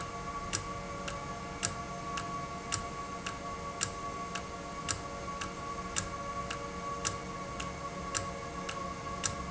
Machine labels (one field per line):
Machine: valve